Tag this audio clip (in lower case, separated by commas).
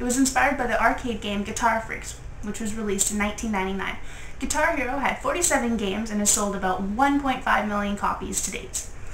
speech